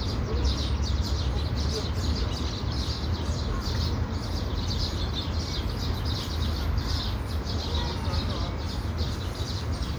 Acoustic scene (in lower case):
park